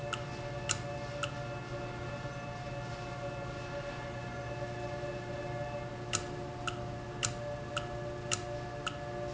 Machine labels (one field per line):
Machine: valve